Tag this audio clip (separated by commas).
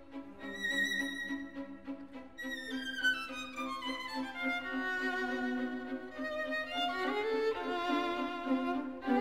Music, Musical instrument, Violin